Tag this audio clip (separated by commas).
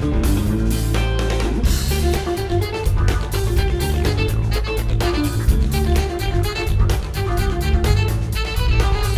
Music, Exciting music